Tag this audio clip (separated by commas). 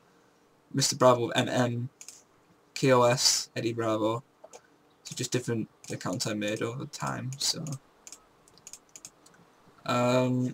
Speech